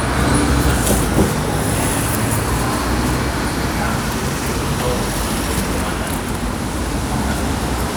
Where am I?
on a street